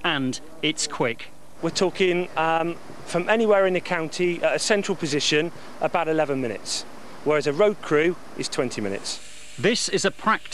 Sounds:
speech
vehicle

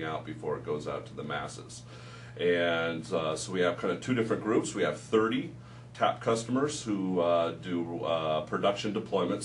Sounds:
speech

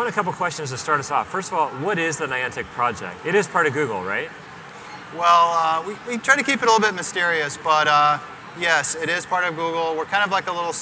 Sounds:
inside a public space
speech

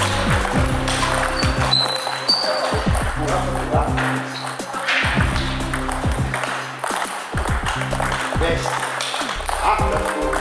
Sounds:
speech
music

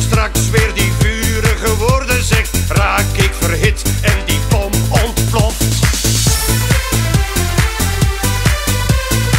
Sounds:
music

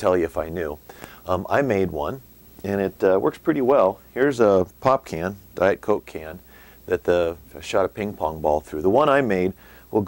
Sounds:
speech

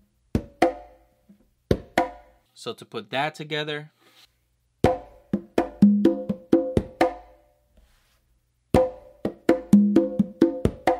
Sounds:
playing congas

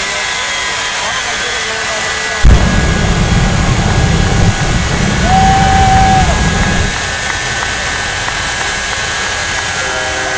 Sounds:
wind noise (microphone)
wind

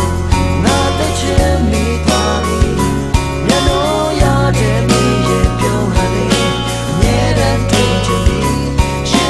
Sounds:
music

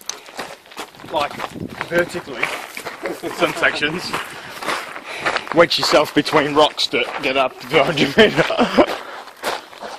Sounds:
run
speech

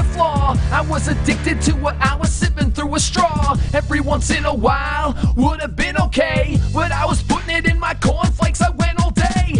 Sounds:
music

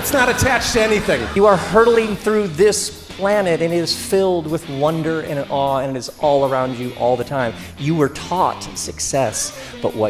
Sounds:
music
speech

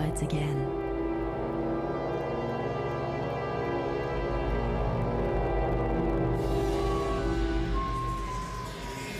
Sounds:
music
speech

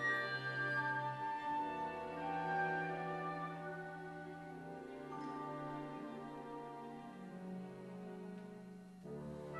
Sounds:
music
orchestra
musical instrument
trombone
classical music

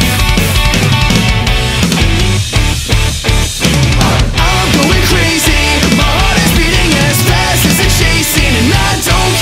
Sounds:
music

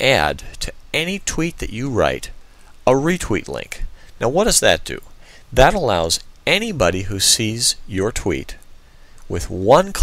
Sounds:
speech

